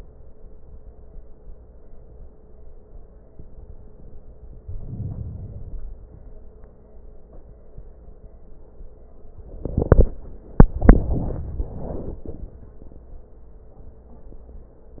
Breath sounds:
4.60-6.10 s: inhalation

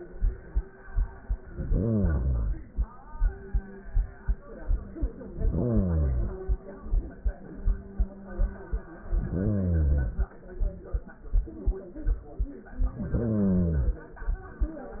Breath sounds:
1.42-2.92 s: inhalation
5.33-6.62 s: inhalation
9.05-10.35 s: inhalation
12.79-14.09 s: inhalation

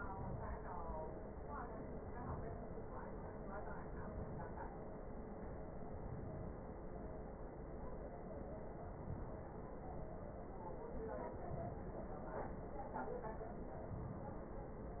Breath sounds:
1.43-3.00 s: inhalation
3.34-4.88 s: inhalation
5.53-7.06 s: inhalation
8.46-10.00 s: inhalation
10.74-12.28 s: inhalation

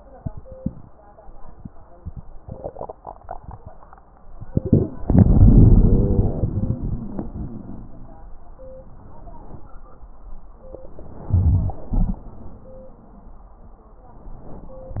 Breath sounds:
4.51-4.98 s: inhalation
5.03-8.32 s: exhalation
5.79-7.66 s: wheeze
11.30-11.77 s: inhalation
11.93-12.22 s: exhalation

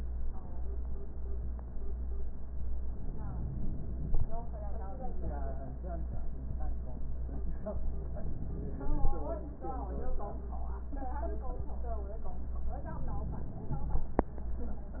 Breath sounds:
2.90-4.31 s: inhalation
12.82-14.24 s: inhalation

